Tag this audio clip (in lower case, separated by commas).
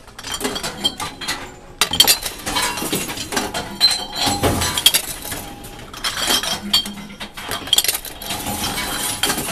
chink